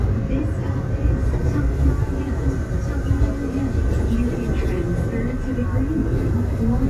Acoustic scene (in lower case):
subway train